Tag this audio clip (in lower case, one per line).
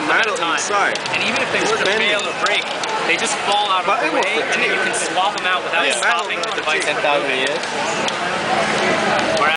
speech